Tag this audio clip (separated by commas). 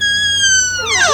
Squeak, Door, Domestic sounds